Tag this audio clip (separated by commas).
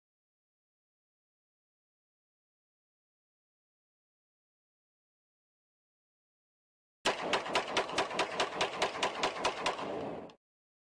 Rattle